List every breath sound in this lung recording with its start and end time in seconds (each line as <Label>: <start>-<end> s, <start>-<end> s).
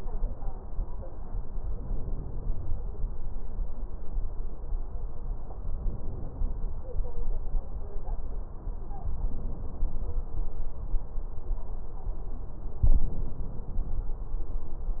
Inhalation: 1.57-2.77 s, 5.64-6.85 s, 9.03-10.14 s, 12.91-14.02 s